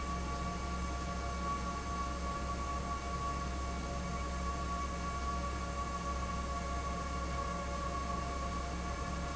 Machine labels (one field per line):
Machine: fan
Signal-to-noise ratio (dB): -6 dB